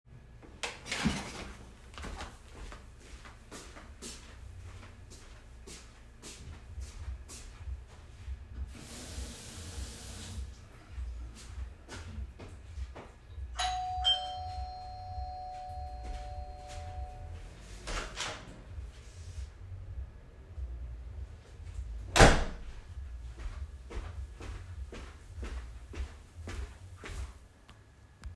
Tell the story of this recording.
I walked from my work area toward the kitchen and opened the faucet. After closing it I walked toward the entrance. The doorbell rang, I opened the door and closed it again, and then walked back.